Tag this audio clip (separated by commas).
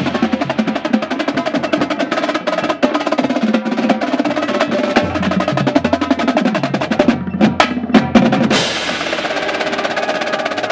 Music